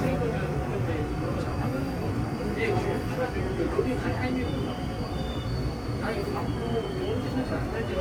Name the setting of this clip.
subway train